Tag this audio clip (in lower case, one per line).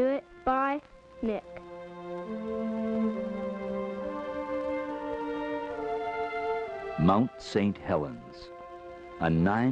speech
music